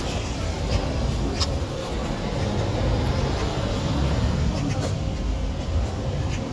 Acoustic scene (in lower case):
residential area